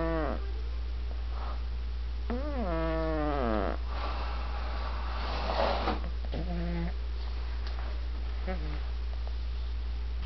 Snoring of a cat